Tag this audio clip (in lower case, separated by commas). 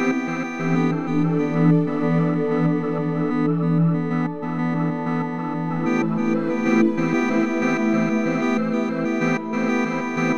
effects unit, electric piano, synthesizer